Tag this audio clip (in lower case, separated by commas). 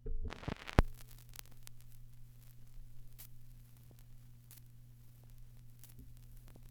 crackle